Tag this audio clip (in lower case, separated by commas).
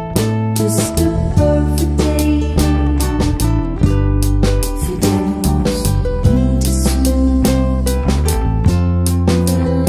music, christmas music